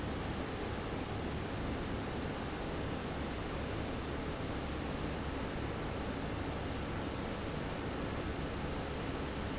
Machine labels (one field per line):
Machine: fan